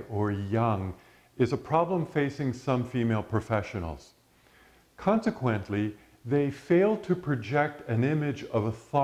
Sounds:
Speech, Male speech, monologue

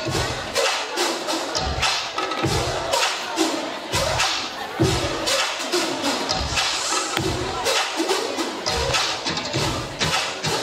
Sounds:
Dance music, Speech, Music

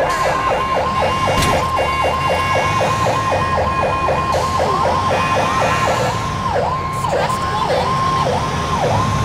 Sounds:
Siren, Emergency vehicle, fire truck (siren)

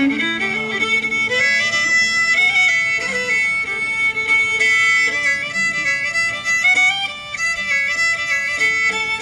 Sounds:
Violin, Musical instrument, Music

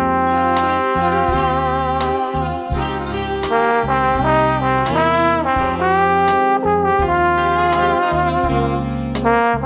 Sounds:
playing trombone

